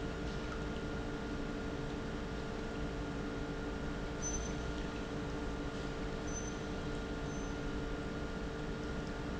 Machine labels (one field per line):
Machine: pump